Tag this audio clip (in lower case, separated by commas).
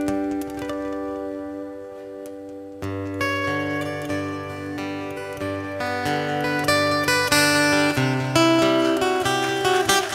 music